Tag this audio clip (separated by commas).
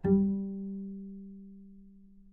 Musical instrument, Music, Bowed string instrument